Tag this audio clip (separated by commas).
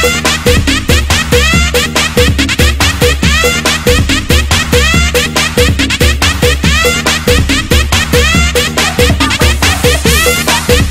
Music, House music